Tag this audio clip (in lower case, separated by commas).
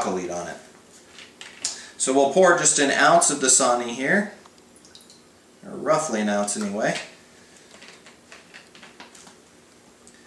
inside a small room, water, speech